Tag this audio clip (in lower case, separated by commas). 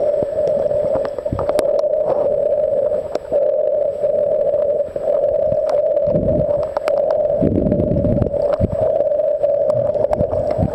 underwater bubbling